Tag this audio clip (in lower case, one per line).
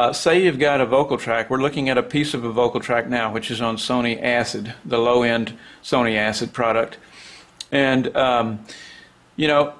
speech